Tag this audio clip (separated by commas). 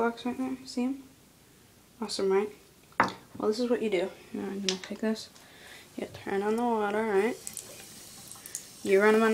Speech